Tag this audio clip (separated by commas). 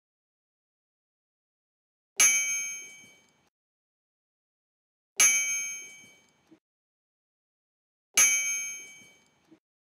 clink